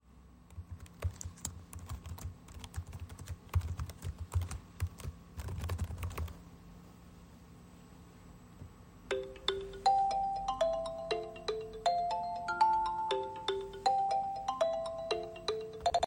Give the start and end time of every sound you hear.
0.6s-6.4s: keyboard typing
9.1s-16.1s: phone ringing

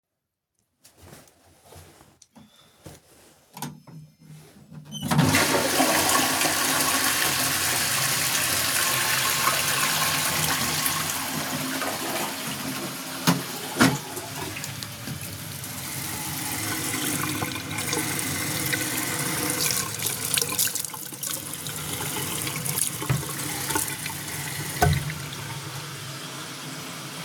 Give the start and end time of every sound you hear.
4.8s-13.3s: toilet flushing
4.8s-26.0s: running water

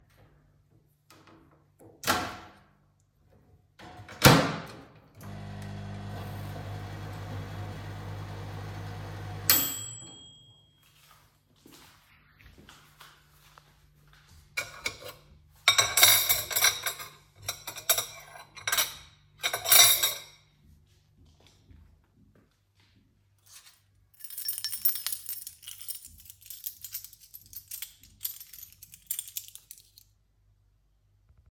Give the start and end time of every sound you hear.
2.0s-10.9s: microwave
10.7s-14.6s: footsteps
14.5s-20.5s: cutlery and dishes
20.9s-23.4s: footsteps
24.1s-30.1s: keys

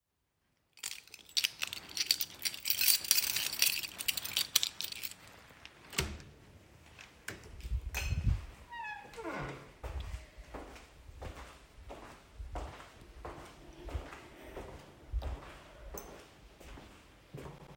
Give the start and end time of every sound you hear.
1.2s-5.6s: keys
5.9s-10.8s: door
10.3s-17.8s: footsteps

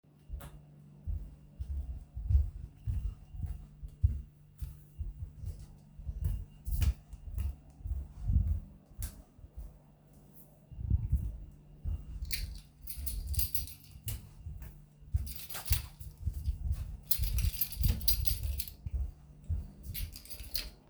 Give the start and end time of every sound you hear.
0.3s-20.9s: footsteps
12.3s-20.7s: keys

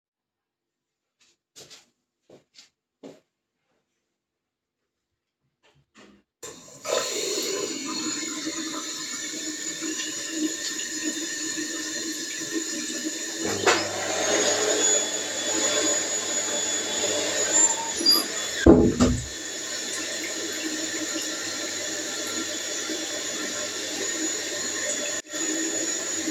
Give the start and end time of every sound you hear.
6.4s-26.3s: running water
13.4s-26.3s: vacuum cleaner
17.4s-19.3s: door

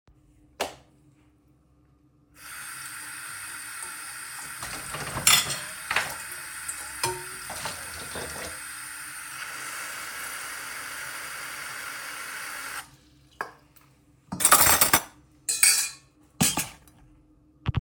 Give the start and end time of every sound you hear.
0.5s-0.9s: light switch
2.4s-12.9s: running water
5.2s-8.2s: cutlery and dishes
13.3s-13.6s: cutlery and dishes
14.3s-16.9s: cutlery and dishes

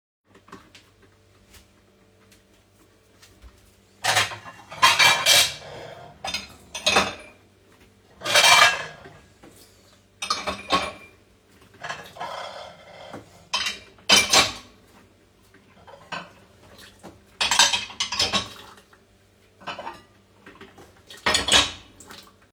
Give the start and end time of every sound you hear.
0.4s-22.5s: coffee machine
3.9s-7.4s: cutlery and dishes
8.2s-9.1s: cutlery and dishes
10.1s-11.2s: cutlery and dishes
11.8s-14.8s: cutlery and dishes
16.0s-16.4s: cutlery and dishes
17.3s-18.8s: cutlery and dishes
19.5s-20.1s: cutlery and dishes
21.0s-21.9s: cutlery and dishes

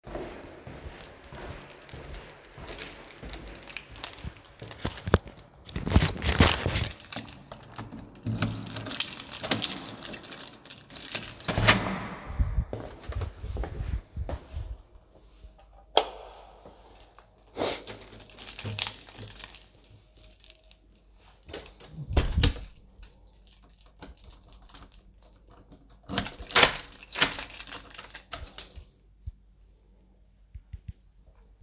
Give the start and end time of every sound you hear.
0.0s-5.2s: footsteps
2.1s-5.0s: keys
5.6s-11.8s: keys
7.6s-12.8s: door
12.5s-15.2s: footsteps
15.7s-16.6s: light switch
16.9s-22.7s: keys
21.7s-23.0s: door
22.8s-29.6s: keys
25.8s-29.0s: door

